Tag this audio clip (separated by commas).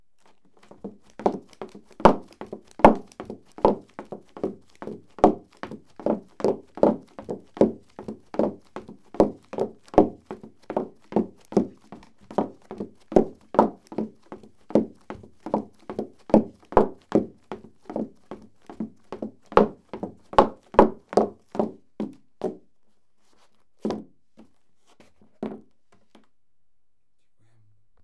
Run